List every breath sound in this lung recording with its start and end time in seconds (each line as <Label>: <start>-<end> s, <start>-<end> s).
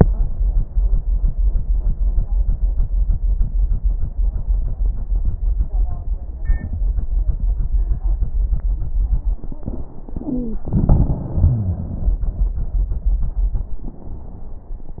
Wheeze: 10.26-10.60 s, 11.36-12.01 s